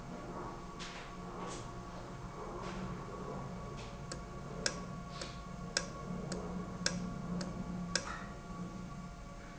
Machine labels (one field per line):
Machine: valve